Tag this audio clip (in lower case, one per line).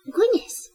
human voice
woman speaking
speech